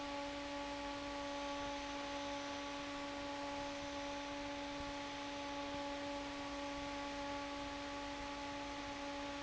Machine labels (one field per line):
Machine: fan